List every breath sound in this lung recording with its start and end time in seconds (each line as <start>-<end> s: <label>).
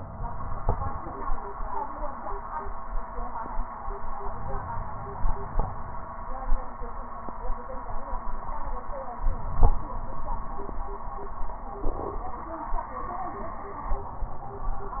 4.21-6.18 s: inhalation
9.18-10.82 s: inhalation